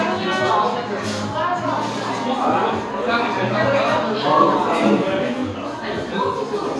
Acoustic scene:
cafe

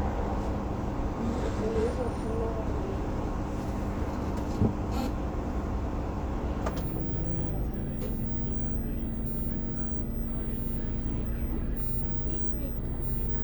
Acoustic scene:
bus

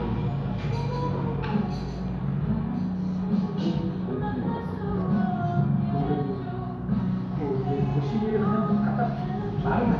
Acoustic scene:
cafe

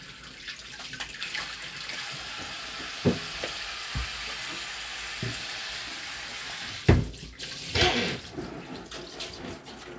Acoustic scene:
kitchen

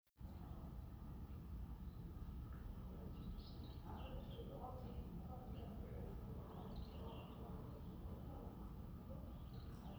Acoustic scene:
residential area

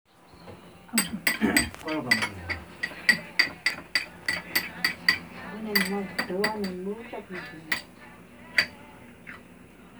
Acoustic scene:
restaurant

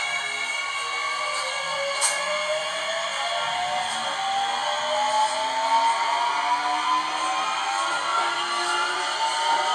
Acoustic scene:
subway train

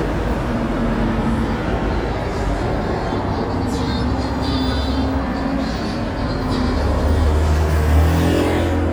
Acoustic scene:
street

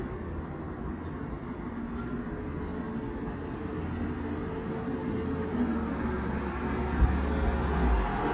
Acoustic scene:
residential area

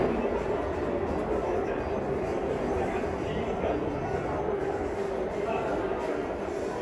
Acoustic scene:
subway station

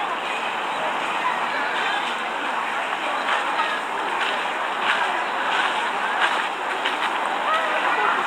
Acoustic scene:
park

